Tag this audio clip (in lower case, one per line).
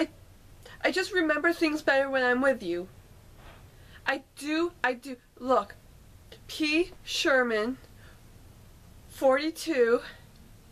speech
narration